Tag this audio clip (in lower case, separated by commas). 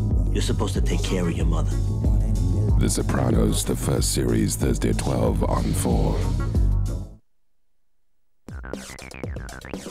punk rock, speech, progressive rock, music